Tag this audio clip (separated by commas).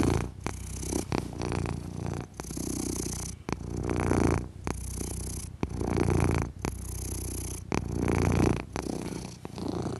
cat purring